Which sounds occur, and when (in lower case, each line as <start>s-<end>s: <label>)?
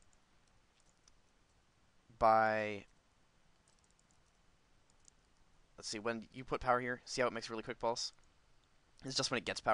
0.0s-9.7s: background noise
0.0s-0.2s: clicking
0.4s-0.5s: clicking
0.7s-1.2s: clicking
2.1s-2.8s: man speaking
3.6s-4.2s: clicking
4.8s-5.4s: clicking
5.7s-8.0s: man speaking
8.9s-9.7s: man speaking